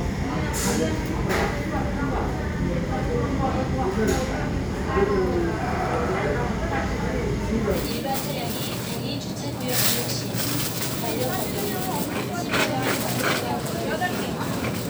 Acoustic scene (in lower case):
crowded indoor space